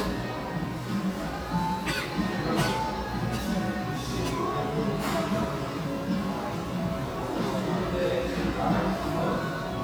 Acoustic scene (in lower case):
cafe